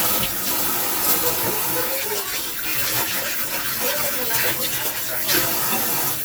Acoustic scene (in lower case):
kitchen